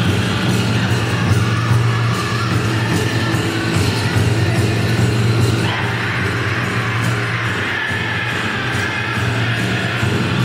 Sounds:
music

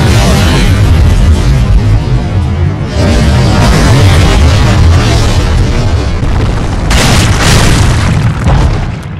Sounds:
boom
music

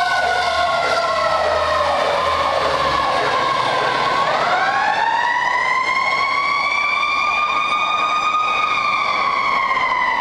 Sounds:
fire truck (siren)
vehicle
emergency vehicle

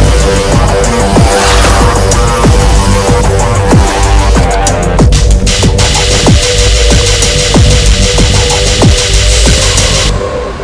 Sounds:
drum and bass

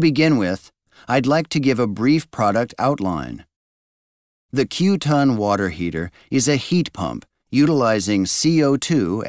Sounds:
speech

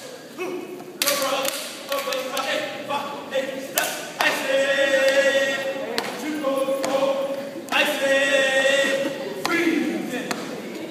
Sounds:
speech

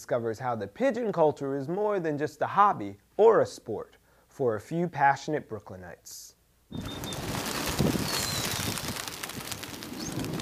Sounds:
bird
speech
animal

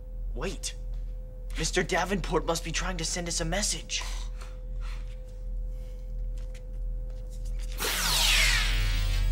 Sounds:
speech

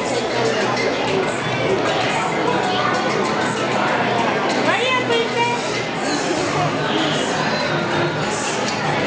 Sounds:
speech
music

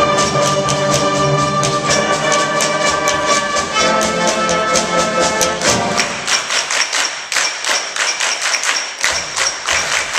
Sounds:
classical music
music
orchestra

